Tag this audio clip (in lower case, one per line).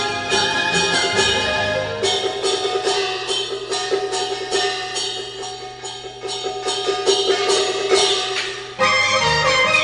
drum
drum kit
music
musical instrument